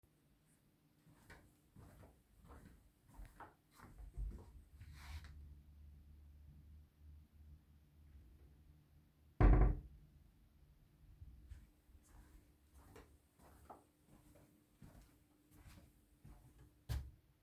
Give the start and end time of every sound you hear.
[1.60, 5.84] footsteps
[9.36, 9.80] wardrobe or drawer
[11.70, 17.12] footsteps

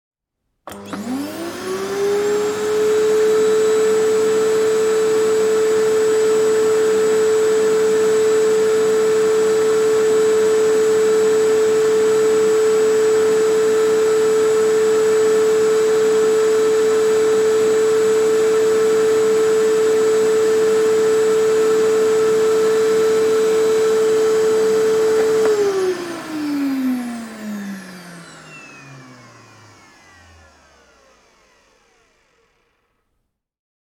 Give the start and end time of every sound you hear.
[0.68, 30.99] vacuum cleaner

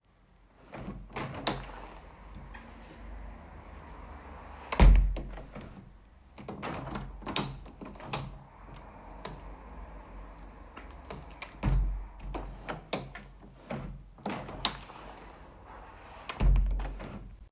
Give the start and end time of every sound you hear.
[0.61, 2.36] window
[4.55, 5.92] window
[6.30, 8.58] window
[11.30, 15.39] window
[16.21, 17.51] window

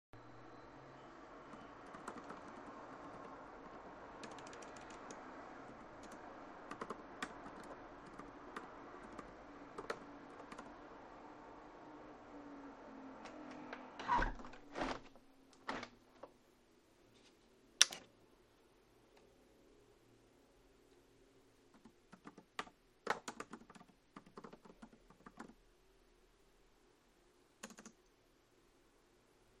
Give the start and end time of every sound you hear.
[1.53, 10.92] keyboard typing
[13.90, 16.39] window
[17.58, 18.26] light switch
[20.89, 28.49] keyboard typing

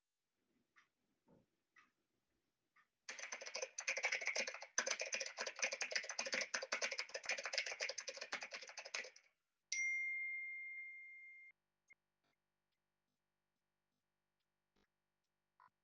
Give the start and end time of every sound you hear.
[2.96, 9.39] keyboard typing
[9.65, 11.59] phone ringing

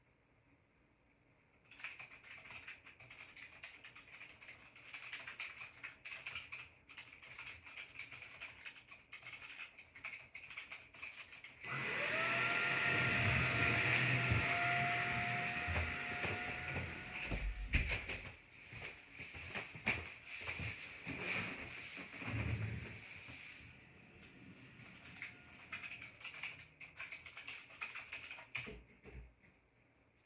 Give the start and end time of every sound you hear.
[1.73, 11.52] keyboard typing
[11.58, 17.63] vacuum cleaner
[17.42, 22.75] footsteps
[21.26, 22.90] door
[25.13, 29.06] keyboard typing

